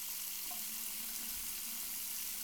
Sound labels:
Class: water tap